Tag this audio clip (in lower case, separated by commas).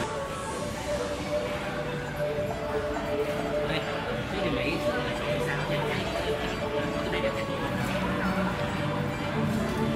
speech, music, single-lens reflex camera